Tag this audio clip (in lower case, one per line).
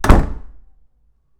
slam
door
domestic sounds
wood